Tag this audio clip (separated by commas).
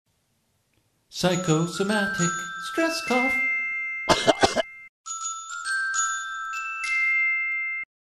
Throat clearing, Music